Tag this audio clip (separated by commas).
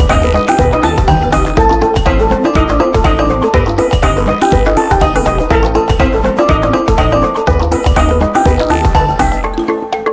Music